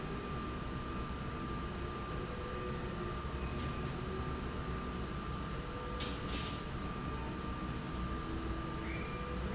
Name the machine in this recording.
slide rail